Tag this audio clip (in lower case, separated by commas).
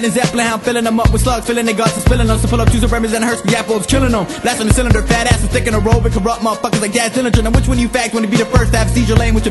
music